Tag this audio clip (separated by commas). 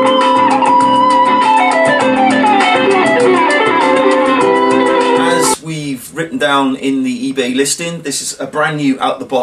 Guitar, Speech, Plucked string instrument, Musical instrument, Music, Strum